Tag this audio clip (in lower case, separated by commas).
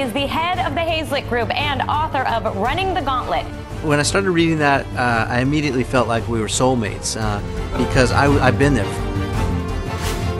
music, speech